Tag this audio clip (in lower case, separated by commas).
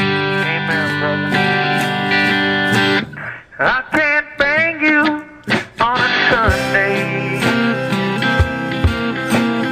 music